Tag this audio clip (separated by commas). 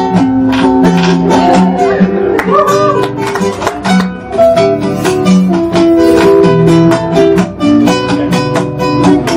Music, Guitar, Musical instrument, Plucked string instrument, Acoustic guitar